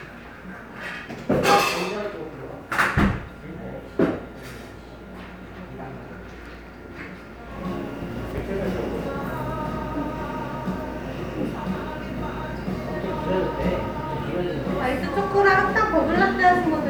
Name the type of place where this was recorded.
cafe